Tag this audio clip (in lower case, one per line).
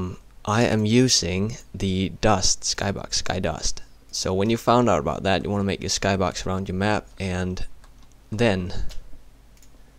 speech